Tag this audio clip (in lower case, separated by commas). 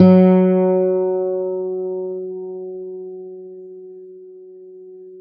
musical instrument, music, plucked string instrument, guitar, acoustic guitar